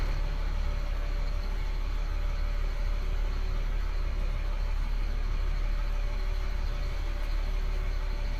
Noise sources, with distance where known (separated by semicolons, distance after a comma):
large-sounding engine, near